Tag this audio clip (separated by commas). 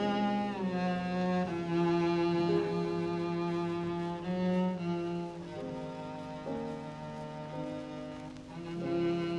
playing double bass